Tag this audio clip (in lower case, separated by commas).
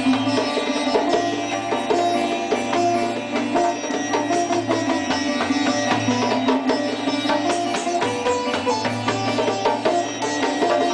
musical instrument, sitar, plucked string instrument, bowed string instrument, music